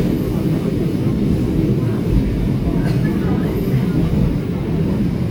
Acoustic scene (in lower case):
subway train